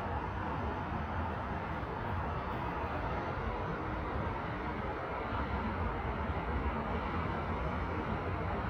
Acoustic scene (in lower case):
street